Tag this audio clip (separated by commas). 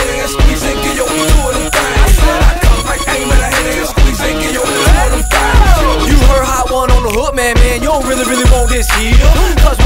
Music, Background music